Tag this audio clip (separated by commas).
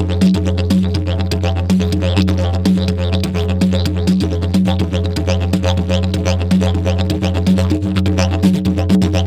playing didgeridoo